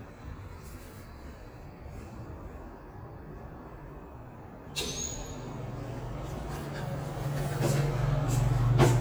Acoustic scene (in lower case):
elevator